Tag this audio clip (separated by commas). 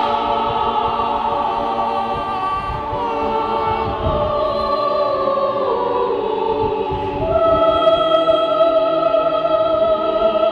Choir, Female singing